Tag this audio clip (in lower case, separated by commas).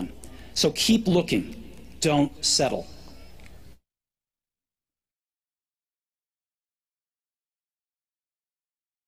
man speaking, speech